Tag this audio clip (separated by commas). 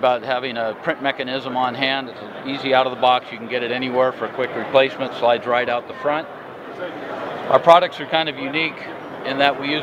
Speech